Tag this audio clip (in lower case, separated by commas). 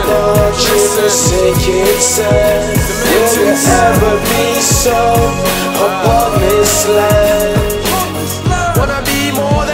music, funk